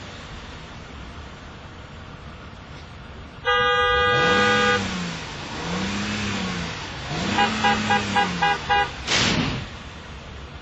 Car horn and engine revving